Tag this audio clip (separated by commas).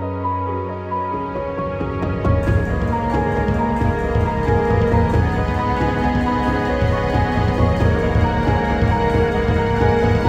Music